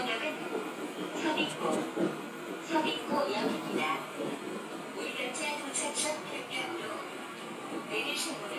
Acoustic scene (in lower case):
subway train